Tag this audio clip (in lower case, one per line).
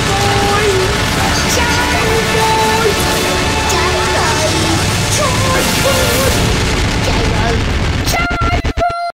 speech
music
pop